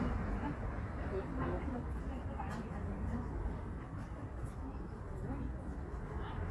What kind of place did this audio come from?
residential area